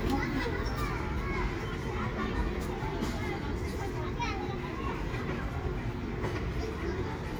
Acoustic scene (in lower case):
residential area